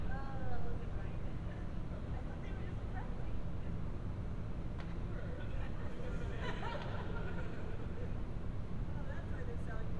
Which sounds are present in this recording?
person or small group talking